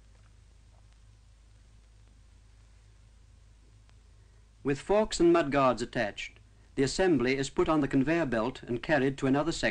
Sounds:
Speech

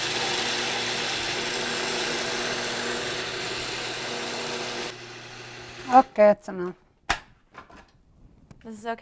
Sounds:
Speech, inside a small room, Blender

